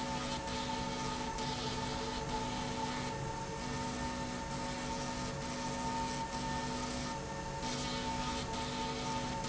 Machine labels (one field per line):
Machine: slide rail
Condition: abnormal